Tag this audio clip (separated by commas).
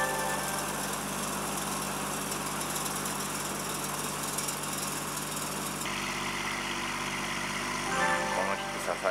tractor digging